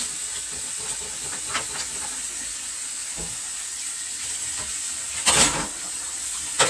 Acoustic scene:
kitchen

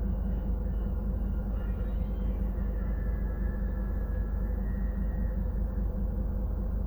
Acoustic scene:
bus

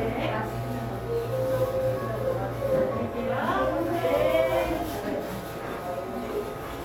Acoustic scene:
cafe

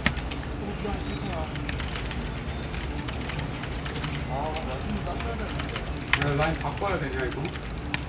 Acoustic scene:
crowded indoor space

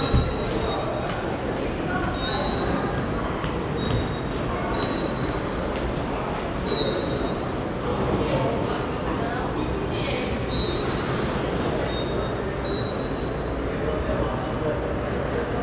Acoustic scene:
subway station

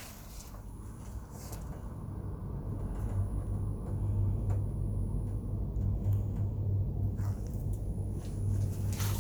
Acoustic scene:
elevator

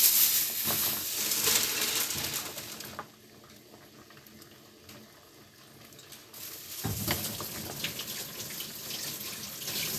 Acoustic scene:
kitchen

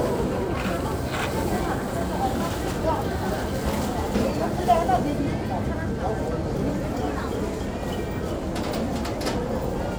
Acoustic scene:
crowded indoor space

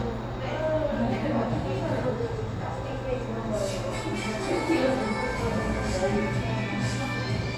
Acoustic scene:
cafe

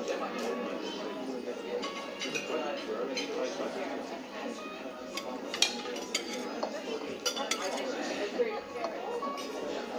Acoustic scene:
restaurant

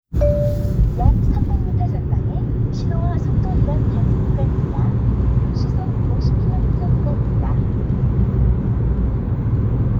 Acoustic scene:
car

